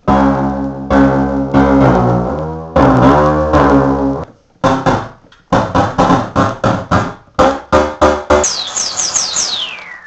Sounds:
musical instrument, music

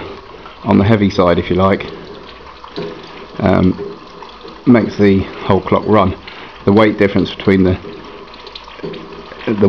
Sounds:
stream, speech

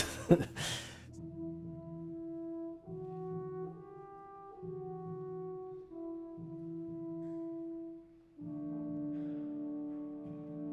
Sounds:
playing french horn

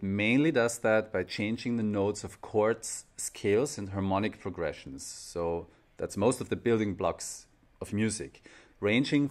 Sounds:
speech

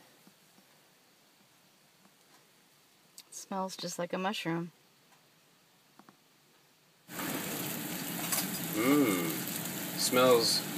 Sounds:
speech

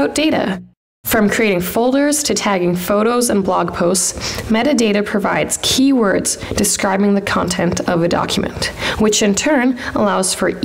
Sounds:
speech synthesizer

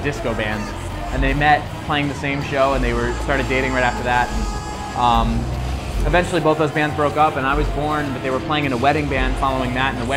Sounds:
music, speech

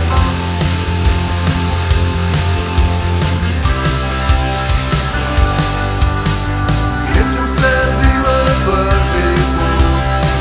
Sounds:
music, pop music

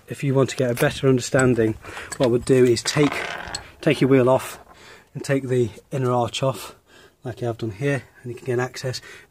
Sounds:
speech

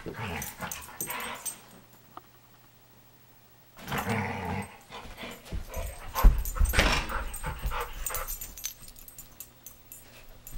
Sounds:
animal, domestic animals, dog, inside a small room

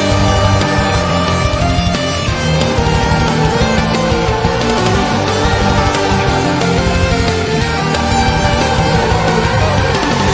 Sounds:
video game music, music

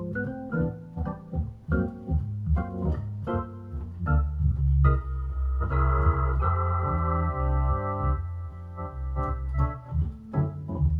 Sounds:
playing electronic organ, electronic organ, organ

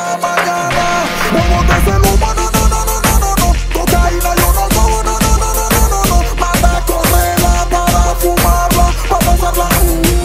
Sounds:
music

